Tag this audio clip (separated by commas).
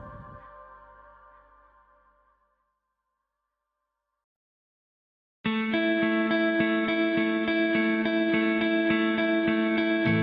Ambient music